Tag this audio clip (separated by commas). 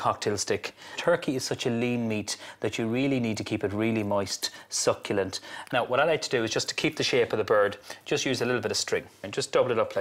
Speech